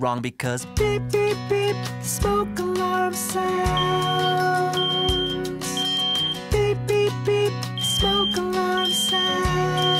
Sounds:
Music, Speech

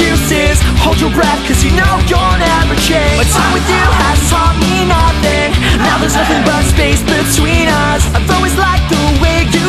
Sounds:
Music

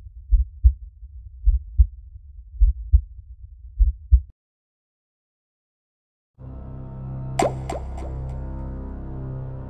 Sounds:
Heart murmur

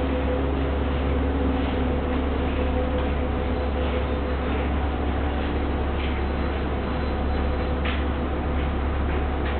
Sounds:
Vehicle

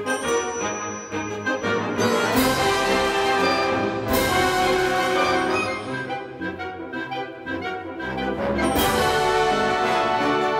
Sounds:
Music

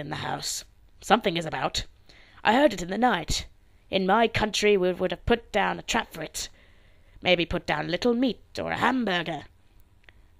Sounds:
Speech

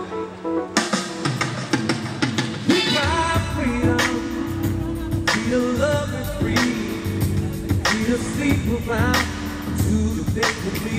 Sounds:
Speech, Music, Singing

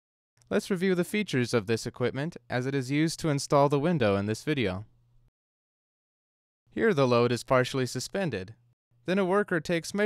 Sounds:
Speech

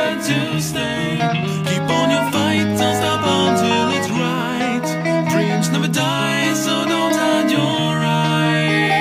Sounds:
Music

